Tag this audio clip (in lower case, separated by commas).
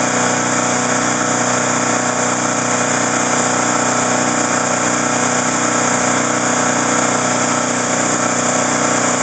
vehicle